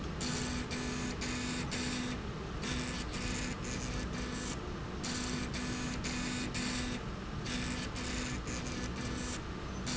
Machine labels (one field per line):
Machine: slide rail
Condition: abnormal